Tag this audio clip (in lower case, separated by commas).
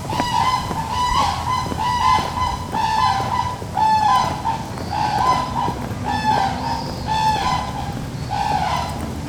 bird, wild animals, animal